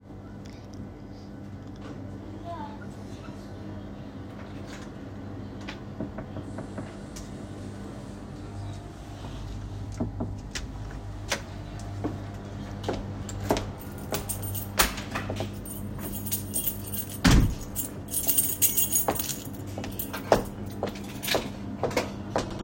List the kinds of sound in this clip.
door, footsteps, keys